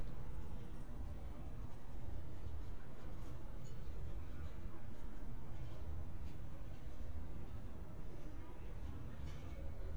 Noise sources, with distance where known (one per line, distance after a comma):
person or small group talking, far